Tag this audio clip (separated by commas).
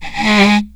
Wood